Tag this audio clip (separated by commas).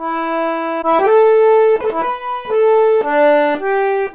Music, Accordion, Musical instrument